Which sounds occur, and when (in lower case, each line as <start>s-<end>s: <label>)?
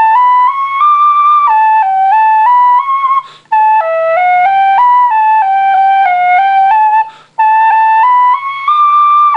0.0s-3.3s: music
0.0s-9.3s: background noise
3.2s-3.5s: breathing
3.5s-7.2s: music
7.1s-7.3s: breathing
7.4s-9.3s: music